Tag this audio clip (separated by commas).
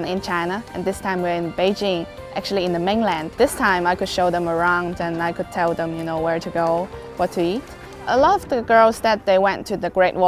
Music, Speech